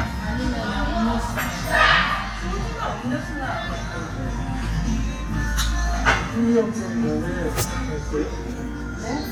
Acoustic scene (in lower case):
restaurant